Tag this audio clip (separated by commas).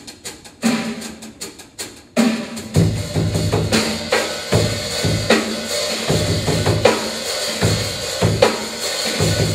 Music, Percussion